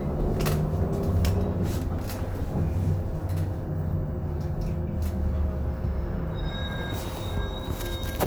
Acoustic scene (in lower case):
bus